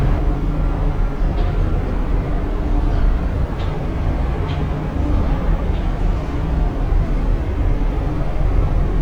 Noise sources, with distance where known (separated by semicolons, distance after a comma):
large-sounding engine, near